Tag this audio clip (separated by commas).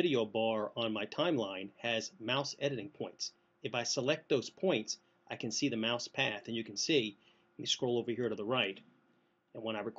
Speech